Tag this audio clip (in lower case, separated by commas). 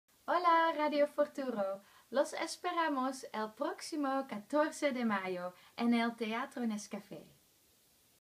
speech